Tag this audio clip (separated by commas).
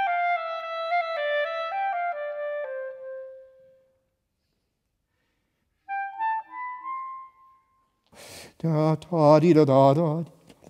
playing clarinet